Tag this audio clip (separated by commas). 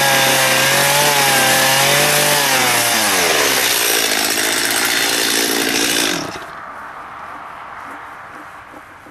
chainsawing trees, Chainsaw, Wood